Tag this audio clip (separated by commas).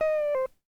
Musical instrument, Plucked string instrument, Music, Guitar